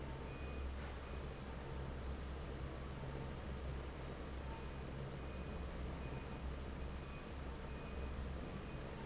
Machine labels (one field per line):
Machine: fan